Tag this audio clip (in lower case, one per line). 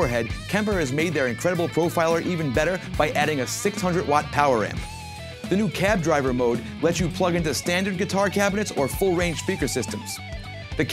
plucked string instrument
strum
music
speech
guitar
electric guitar